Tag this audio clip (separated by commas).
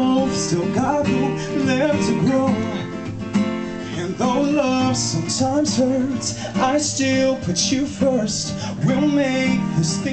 Music, Male singing